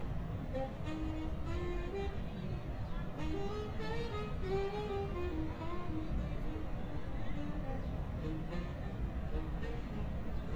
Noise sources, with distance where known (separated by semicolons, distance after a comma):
music from a fixed source, near